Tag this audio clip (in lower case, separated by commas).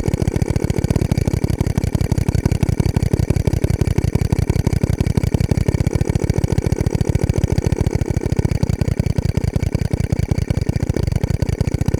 tools, power tool, drill